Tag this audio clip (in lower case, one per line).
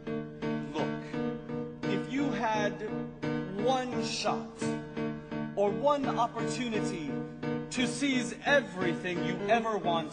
speech
music